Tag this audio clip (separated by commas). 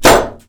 gunfire, Explosion